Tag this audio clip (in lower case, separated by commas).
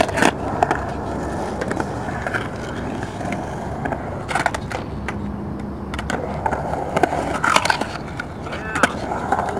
skateboarding, speech, skateboard